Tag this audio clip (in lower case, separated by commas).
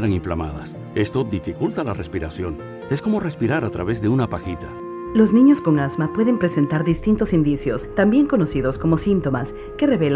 music, speech